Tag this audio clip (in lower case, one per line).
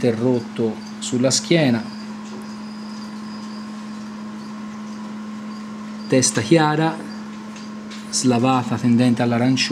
inside a large room or hall
speech